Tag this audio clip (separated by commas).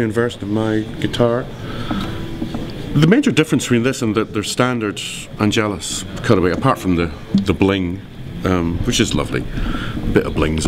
Speech